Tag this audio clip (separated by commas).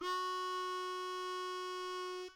Music, Harmonica, Musical instrument